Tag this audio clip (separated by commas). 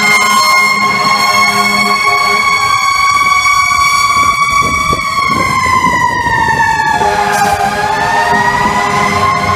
Music, truck horn